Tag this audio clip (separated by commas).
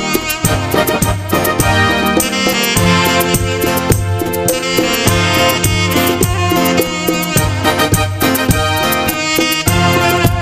playing saxophone